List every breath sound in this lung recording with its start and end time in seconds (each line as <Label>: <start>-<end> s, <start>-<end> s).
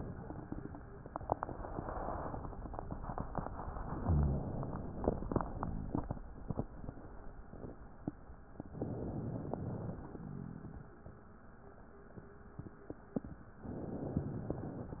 Inhalation: 3.89-5.29 s, 8.75-10.11 s, 13.61-15.00 s
Exhalation: 5.29-6.07 s
Rhonchi: 4.00-4.57 s, 5.53-5.96 s, 10.11-10.85 s